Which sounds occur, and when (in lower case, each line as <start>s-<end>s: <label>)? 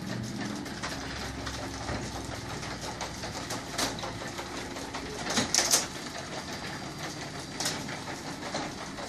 0.0s-9.0s: sliding door
3.5s-3.9s: generic impact sounds
5.2s-5.8s: generic impact sounds
7.6s-7.8s: generic impact sounds
8.5s-8.7s: generic impact sounds